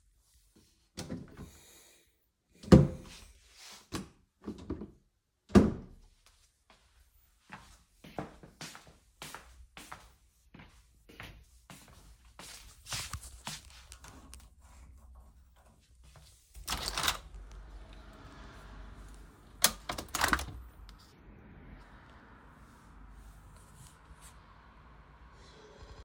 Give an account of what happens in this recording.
I opend a drawer, closed it again and opend another drawer. I closed it again, went to the window and opend it.